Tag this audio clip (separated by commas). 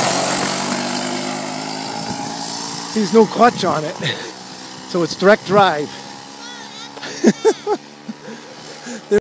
Speech, Heavy engine (low frequency)